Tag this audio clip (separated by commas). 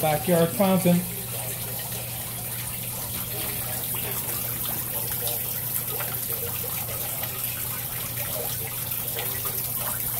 Water, Trickle, Liquid, Speech